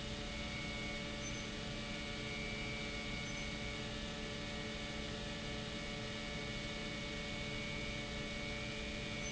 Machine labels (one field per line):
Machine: pump